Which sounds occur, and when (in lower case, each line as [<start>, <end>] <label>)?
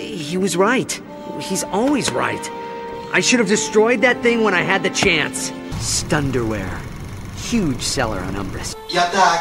[0.00, 0.96] male speech
[0.00, 9.40] conversation
[0.00, 9.40] music
[1.02, 1.32] breathing
[1.35, 2.44] male speech
[1.96, 2.38] generic impact sounds
[3.08, 5.46] male speech
[4.96, 5.26] generic impact sounds
[5.66, 6.86] male speech
[6.04, 8.69] mechanisms
[7.34, 8.71] male speech
[8.86, 9.40] male speech